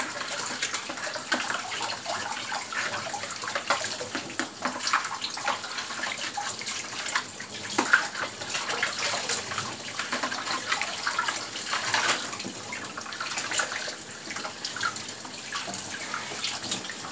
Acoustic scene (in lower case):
kitchen